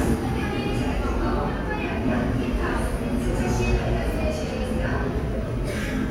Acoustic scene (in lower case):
subway station